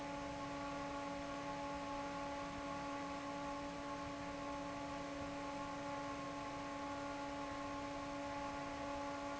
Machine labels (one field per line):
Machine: fan